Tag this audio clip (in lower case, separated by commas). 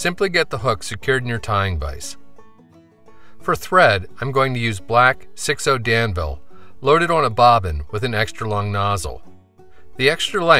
music, speech